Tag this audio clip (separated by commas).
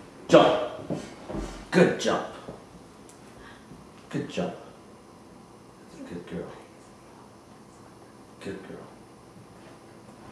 Speech